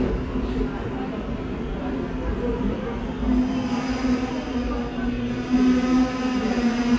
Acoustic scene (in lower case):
subway station